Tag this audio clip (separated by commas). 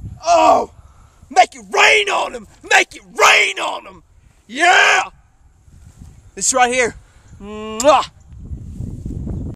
Speech